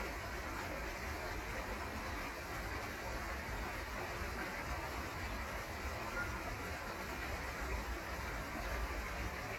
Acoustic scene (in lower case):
park